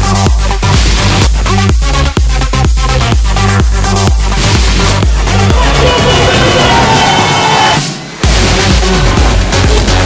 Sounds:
music, electronic dance music

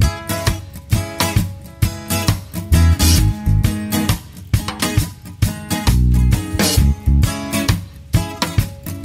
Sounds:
music

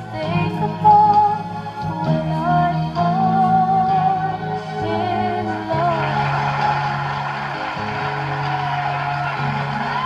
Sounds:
music, shout

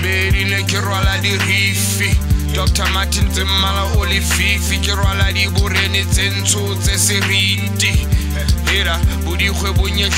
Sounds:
music

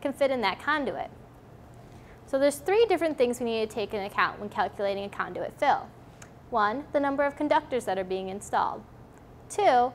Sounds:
speech

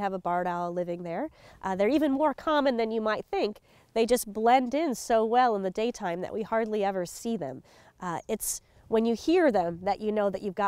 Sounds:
speech

